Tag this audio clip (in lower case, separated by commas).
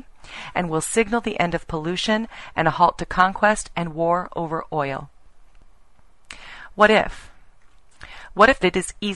speech, female speech